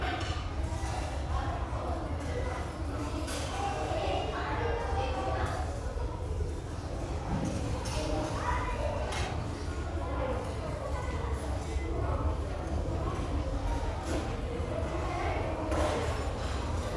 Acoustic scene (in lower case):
restaurant